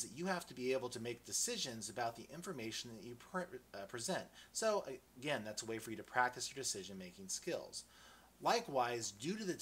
A man gives a speech